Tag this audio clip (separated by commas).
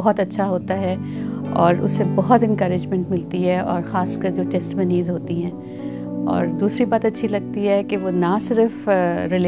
Music, Speech